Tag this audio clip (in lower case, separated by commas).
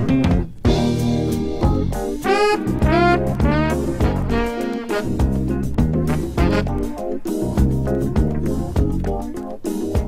music